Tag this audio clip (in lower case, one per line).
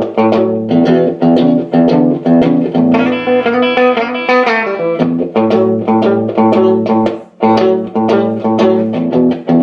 music
plucked string instrument
electric guitar
guitar
musical instrument